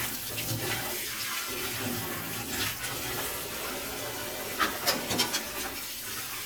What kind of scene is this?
kitchen